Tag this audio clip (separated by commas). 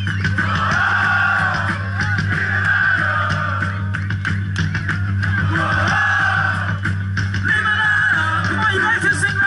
Music, Speech, Crowd, Singing